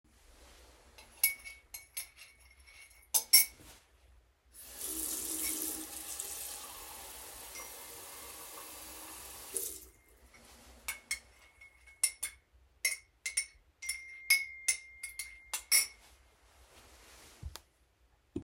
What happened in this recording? I get my cup and spoon. I turn on the tap to pour some water into the cup and get a notifcation while it's running. I then have enough and continue mixing the content of my cup and receive another notification.